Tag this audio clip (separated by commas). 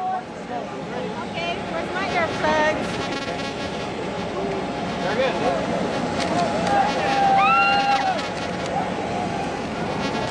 Speech